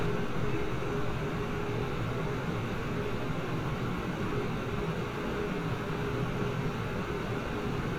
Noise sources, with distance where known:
large-sounding engine, near

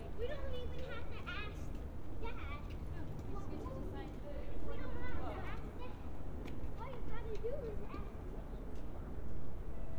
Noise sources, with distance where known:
person or small group talking

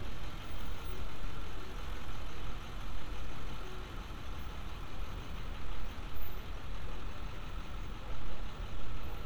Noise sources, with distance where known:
large-sounding engine

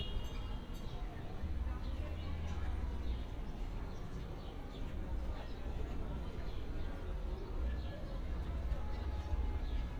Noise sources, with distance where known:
unidentified human voice

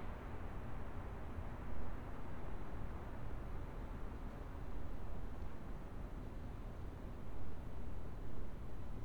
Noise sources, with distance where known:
background noise

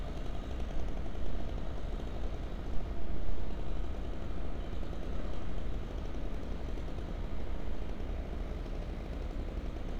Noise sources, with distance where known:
jackhammer

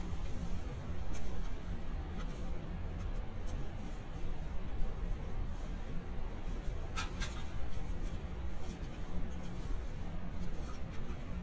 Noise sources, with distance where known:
background noise

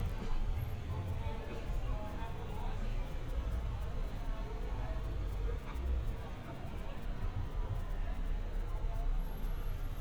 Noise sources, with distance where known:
unidentified human voice, far

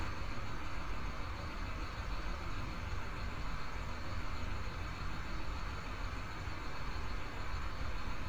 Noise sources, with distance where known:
engine of unclear size, near

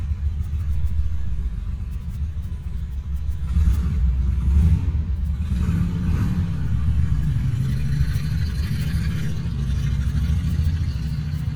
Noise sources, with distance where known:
medium-sounding engine, near

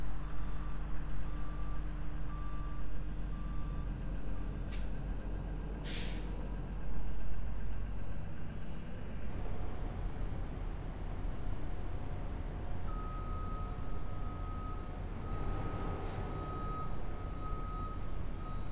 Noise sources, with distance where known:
large-sounding engine
reverse beeper

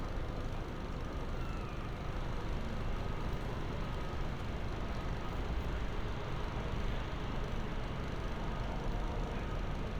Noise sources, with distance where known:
engine of unclear size
reverse beeper, far

